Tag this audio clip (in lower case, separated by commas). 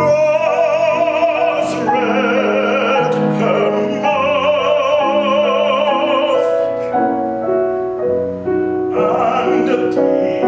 music, classical music